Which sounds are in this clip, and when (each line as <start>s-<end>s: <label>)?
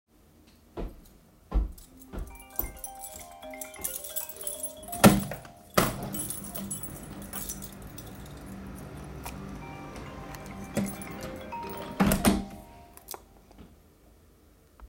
0.6s-4.7s: footsteps
2.0s-9.6s: keys
2.4s-6.0s: phone ringing
5.7s-6.1s: window
9.7s-13.3s: phone ringing
11.9s-12.7s: window